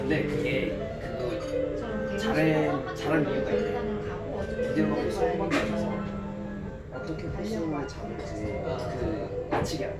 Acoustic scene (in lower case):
crowded indoor space